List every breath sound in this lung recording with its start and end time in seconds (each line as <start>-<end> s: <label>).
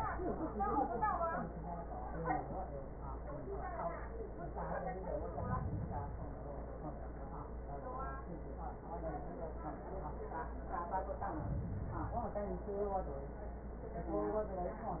4.98-6.48 s: inhalation
11.07-12.57 s: inhalation